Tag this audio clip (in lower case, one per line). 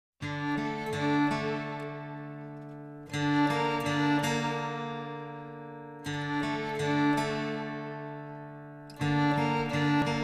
harpsichord
music